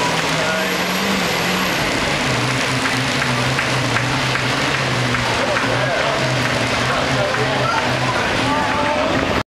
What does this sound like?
A truck makes loud, mechanical noises while a man speaks in the background